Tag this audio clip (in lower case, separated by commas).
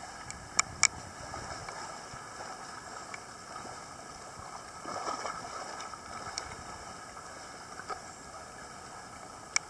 scuba diving